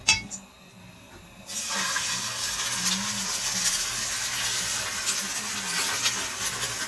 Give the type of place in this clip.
kitchen